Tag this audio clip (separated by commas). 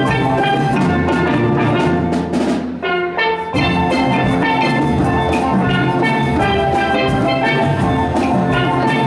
Percussion, Drum, Bass drum, Drum roll